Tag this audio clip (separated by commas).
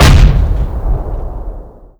Explosion